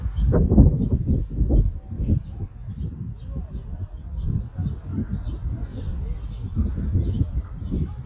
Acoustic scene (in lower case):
park